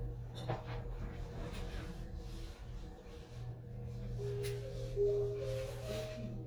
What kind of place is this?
elevator